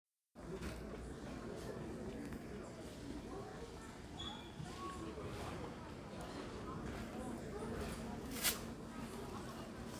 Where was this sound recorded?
in a crowded indoor space